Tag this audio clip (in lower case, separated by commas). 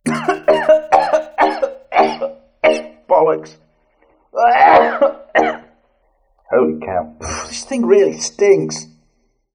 speech, cough, human voice, respiratory sounds